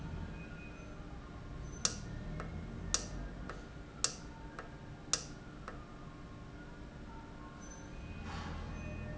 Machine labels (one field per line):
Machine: valve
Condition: normal